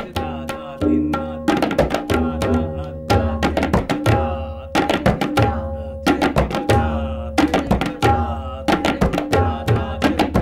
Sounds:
playing tabla

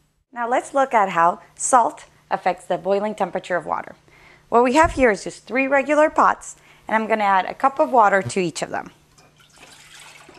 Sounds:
Speech, Water

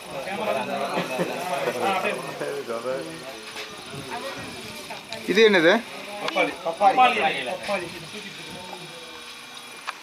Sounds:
Speech

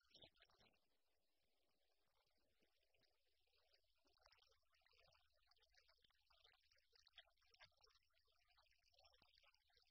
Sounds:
Speech

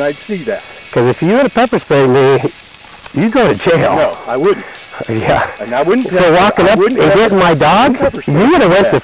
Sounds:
Speech

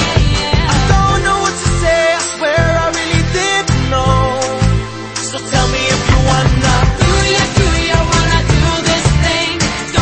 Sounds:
Music, Exciting music

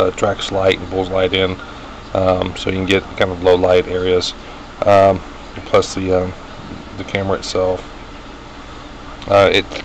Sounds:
Speech

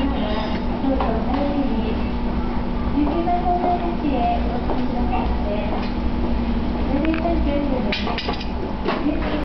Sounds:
Speech

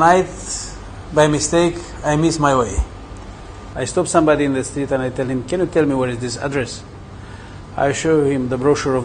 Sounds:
Speech

